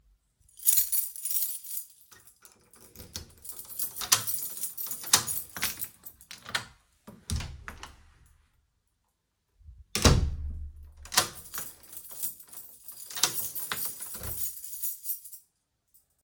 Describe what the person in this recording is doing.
I took the keys, unlocked the door and opened it. Then I closed and locked it again.